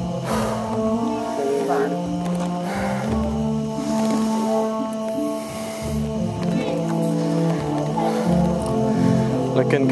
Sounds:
Music, Speech

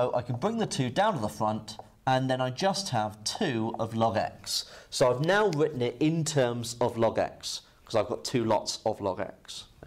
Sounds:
Speech, Writing

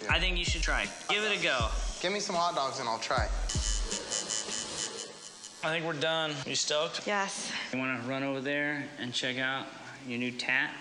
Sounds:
Speech, Music

